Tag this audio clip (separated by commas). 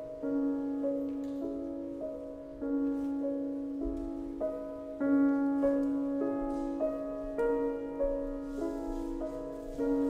Music, Echo